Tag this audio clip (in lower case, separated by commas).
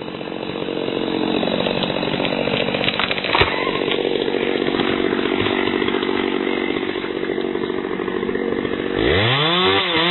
chainsawing trees, chainsaw